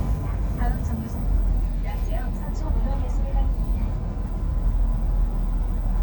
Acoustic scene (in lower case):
bus